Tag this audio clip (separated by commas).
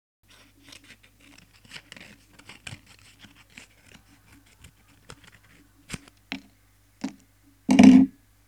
Domestic sounds, Scissors